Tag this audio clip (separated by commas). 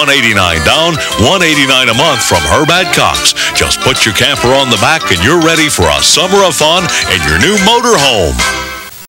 Music, Speech